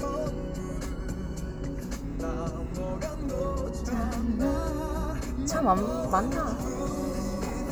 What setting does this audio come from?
car